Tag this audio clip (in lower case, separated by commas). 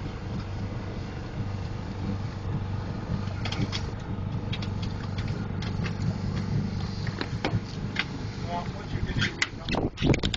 speech, vehicle, water vehicle